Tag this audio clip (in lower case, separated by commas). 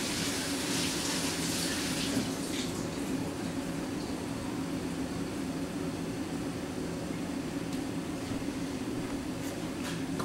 inside a small room